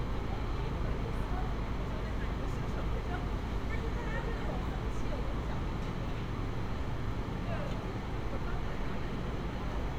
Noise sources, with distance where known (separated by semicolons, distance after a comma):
person or small group shouting